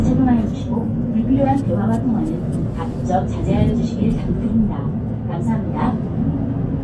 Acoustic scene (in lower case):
bus